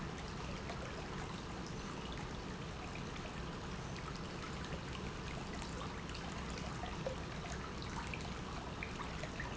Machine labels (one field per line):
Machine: pump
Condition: normal